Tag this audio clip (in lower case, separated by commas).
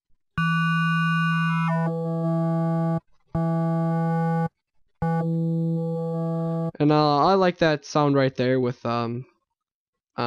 speech, electronic music, house music, synthesizer, music